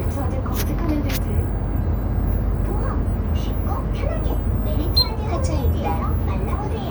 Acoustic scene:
bus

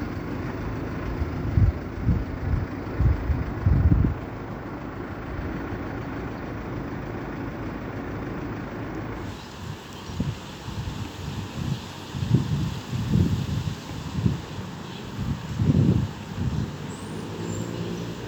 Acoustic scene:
residential area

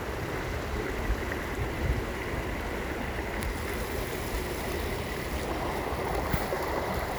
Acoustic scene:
park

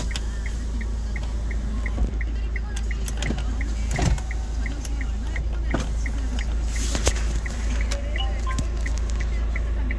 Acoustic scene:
car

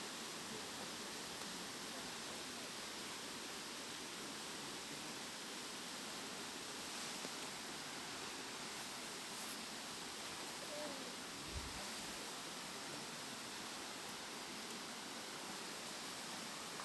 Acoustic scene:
park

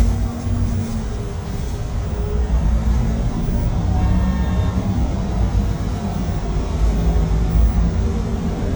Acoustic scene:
bus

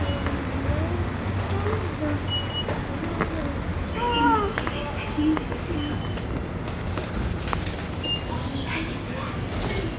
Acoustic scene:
subway station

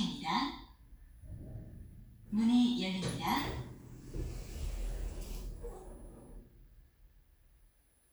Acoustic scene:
elevator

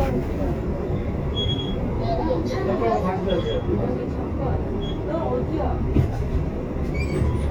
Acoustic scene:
bus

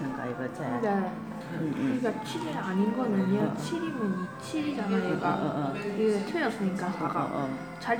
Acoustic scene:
crowded indoor space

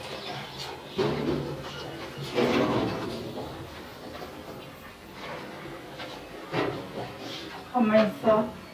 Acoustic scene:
elevator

